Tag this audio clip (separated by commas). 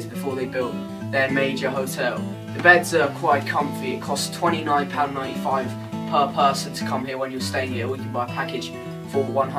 Music, Speech